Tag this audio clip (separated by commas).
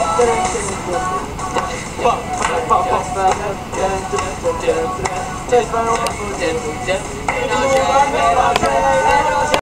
Music